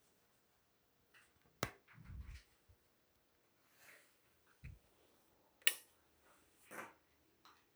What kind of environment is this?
restroom